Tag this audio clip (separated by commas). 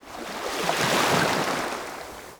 Waves, Ocean, Water